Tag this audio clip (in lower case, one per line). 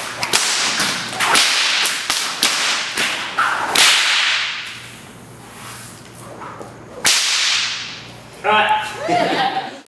whip